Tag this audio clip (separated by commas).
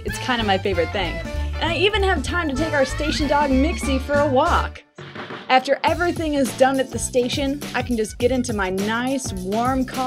Speech, Music